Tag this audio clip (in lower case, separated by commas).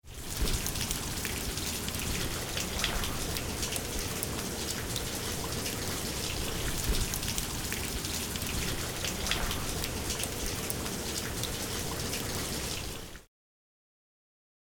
water, rain